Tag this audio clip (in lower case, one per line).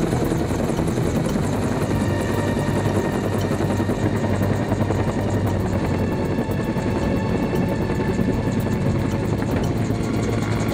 music
vehicle
helicopter